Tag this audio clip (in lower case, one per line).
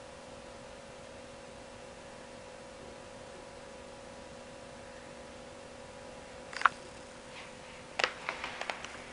inside a small room